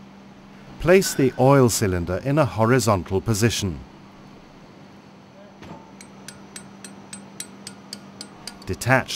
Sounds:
speech

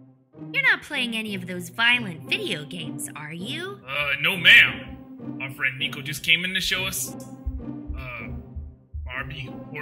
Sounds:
speech

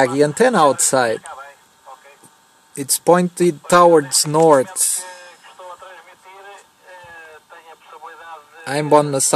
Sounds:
speech

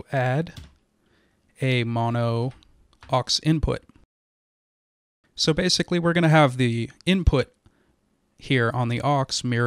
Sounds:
speech

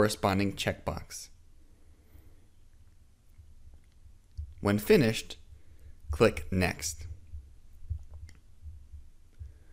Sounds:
inside a small room
speech

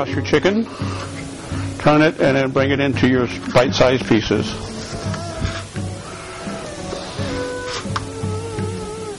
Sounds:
speech
music

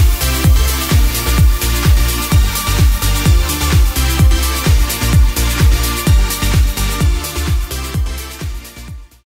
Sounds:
music

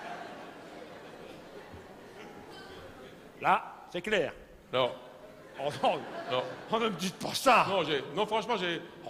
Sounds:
speech

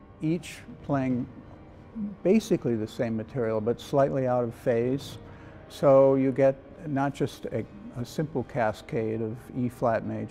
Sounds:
speech

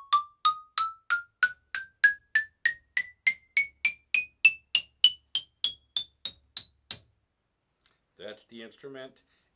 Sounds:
playing glockenspiel

